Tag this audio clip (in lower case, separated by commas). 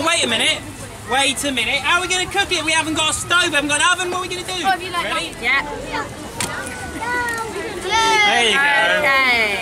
speech